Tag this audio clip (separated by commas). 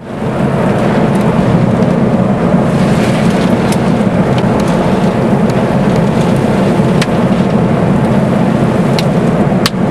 tornado roaring